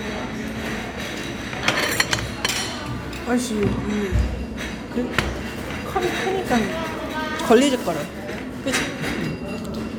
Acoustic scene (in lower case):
restaurant